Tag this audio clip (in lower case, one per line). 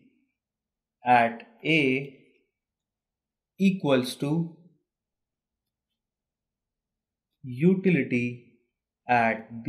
speech